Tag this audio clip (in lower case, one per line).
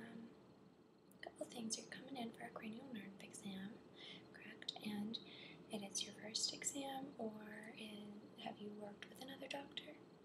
speech